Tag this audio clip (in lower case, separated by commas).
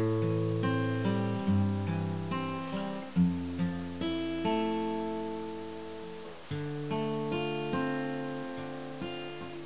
guitar, music, strum, musical instrument, plucked string instrument